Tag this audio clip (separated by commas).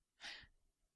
Respiratory sounds, Gasp, Breathing